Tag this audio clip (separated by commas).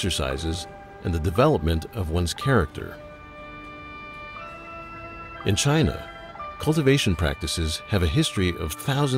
Speech, Music